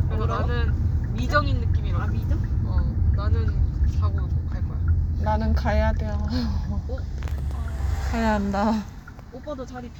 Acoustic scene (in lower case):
car